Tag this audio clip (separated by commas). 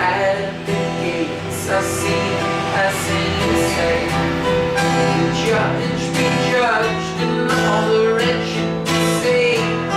Music, Singing